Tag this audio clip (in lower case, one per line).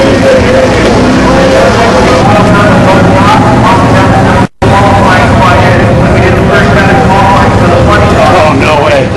speech